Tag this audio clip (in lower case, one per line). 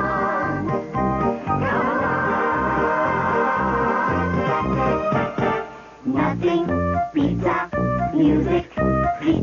music